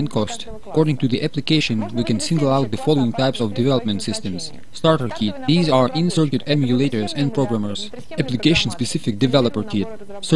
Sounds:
speech

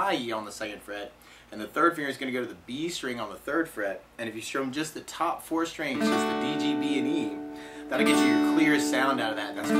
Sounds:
musical instrument
acoustic guitar
speech
strum
plucked string instrument
music
guitar

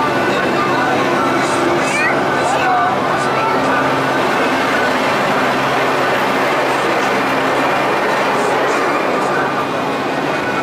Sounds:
vehicle
speech

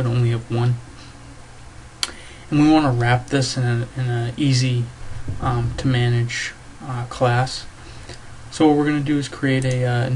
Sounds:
speech

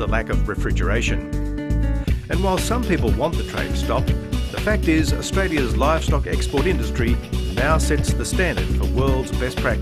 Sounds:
music
speech

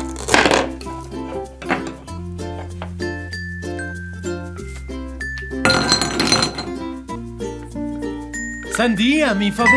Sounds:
chopping food

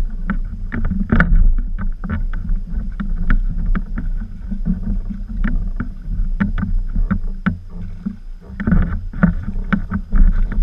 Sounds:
kayak
boat
canoe

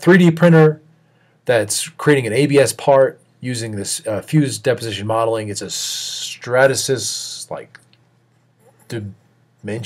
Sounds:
speech

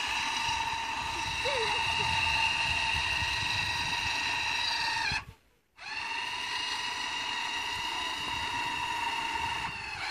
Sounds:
outside, rural or natural
vehicle
speech

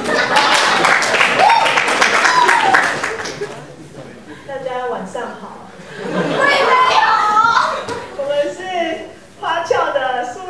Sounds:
speech

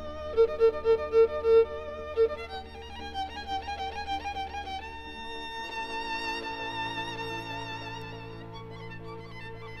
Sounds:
music

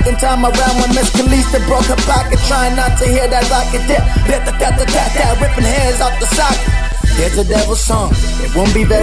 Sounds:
music
soundtrack music

